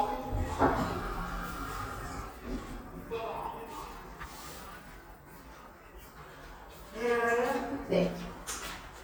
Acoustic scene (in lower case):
elevator